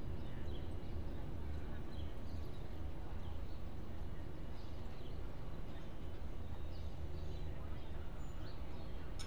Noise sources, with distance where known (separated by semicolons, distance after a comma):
background noise